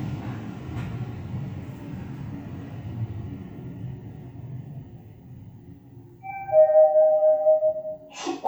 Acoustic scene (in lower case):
elevator